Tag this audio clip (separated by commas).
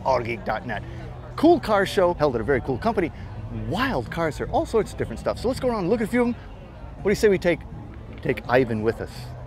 Speech, Music